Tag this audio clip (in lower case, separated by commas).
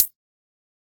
hi-hat, percussion, music, musical instrument, cymbal